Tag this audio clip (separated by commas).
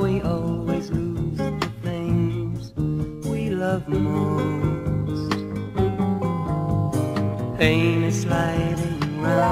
Music